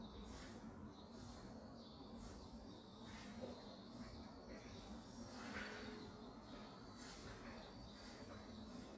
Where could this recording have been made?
in a residential area